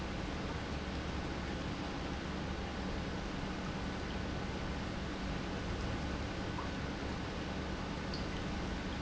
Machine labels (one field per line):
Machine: pump